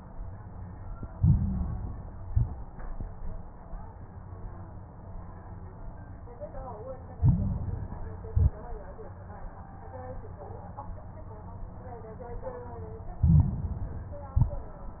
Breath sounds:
1.10-2.14 s: inhalation
1.10-2.14 s: crackles
2.18-2.82 s: exhalation
2.18-2.82 s: crackles
7.14-8.19 s: inhalation
7.14-8.19 s: crackles
8.28-8.92 s: exhalation
8.28-8.92 s: crackles
13.22-14.27 s: inhalation
13.22-14.27 s: crackles
14.37-15.00 s: exhalation
14.37-15.00 s: crackles

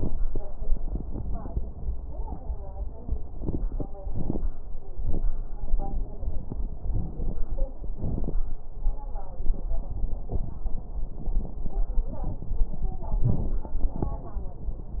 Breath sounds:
6.89-7.39 s: inhalation
6.89-7.39 s: crackles
7.94-8.44 s: exhalation
7.94-8.44 s: crackles

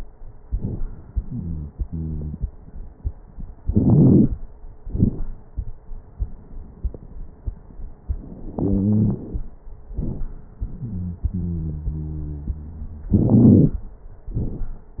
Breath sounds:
1.22-1.69 s: wheeze
1.86-2.34 s: wheeze
3.63-4.39 s: inhalation
3.63-4.39 s: crackles
4.83-5.35 s: exhalation
4.83-5.35 s: crackles
8.51-9.42 s: inhalation
8.60-9.24 s: wheeze
9.98-10.35 s: exhalation
9.98-10.35 s: crackles
10.81-11.24 s: wheeze
11.31-13.13 s: wheeze
13.17-13.79 s: inhalation
13.17-13.79 s: crackles
14.33-14.80 s: exhalation
14.33-14.80 s: crackles

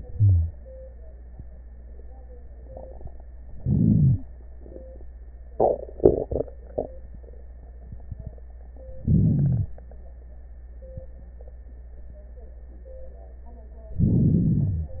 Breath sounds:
0.12-0.50 s: wheeze
3.59-4.25 s: inhalation
3.59-4.25 s: crackles
9.03-9.70 s: inhalation
9.03-9.70 s: crackles
13.97-14.97 s: inhalation
13.97-14.97 s: crackles

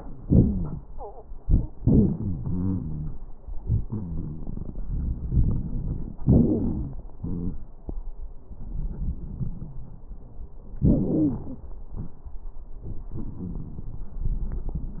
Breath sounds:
0.23-0.83 s: wheeze
2.12-3.14 s: wheeze
3.62-4.46 s: wheeze
5.29-6.16 s: inhalation
5.29-6.16 s: crackles
6.18-7.06 s: exhalation
6.18-7.06 s: wheeze
7.20-7.61 s: wheeze
8.46-10.03 s: inhalation
8.46-10.03 s: crackles
10.84-11.67 s: exhalation
10.84-11.67 s: wheeze

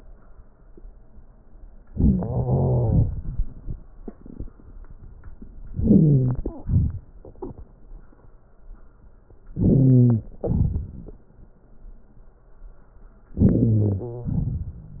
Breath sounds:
2.15-3.00 s: wheeze
5.75-6.39 s: wheeze
9.54-10.27 s: wheeze
13.41-14.41 s: wheeze

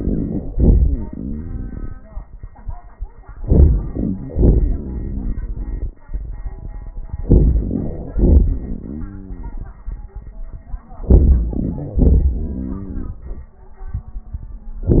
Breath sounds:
3.32-4.25 s: inhalation
4.27-6.05 s: exhalation
7.20-8.13 s: inhalation
8.15-10.43 s: exhalation
10.91-11.97 s: inhalation
11.99-13.90 s: exhalation

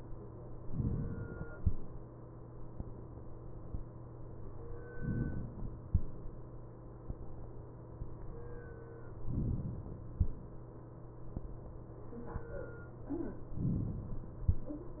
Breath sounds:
0.68-1.54 s: inhalation
4.94-5.81 s: inhalation
9.23-10.09 s: inhalation
13.64-14.50 s: inhalation

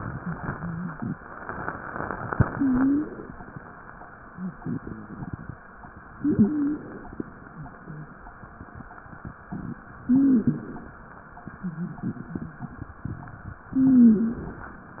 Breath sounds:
2.31-3.33 s: inhalation
2.49-3.07 s: wheeze
4.28-5.30 s: wheeze
4.28-5.60 s: exhalation
6.16-7.19 s: inhalation
6.18-6.81 s: wheeze
7.49-8.13 s: wheeze
10.02-10.96 s: inhalation
10.06-10.68 s: wheeze
11.56-12.93 s: exhalation
11.56-12.93 s: wheeze
13.71-14.46 s: wheeze
13.71-14.72 s: inhalation

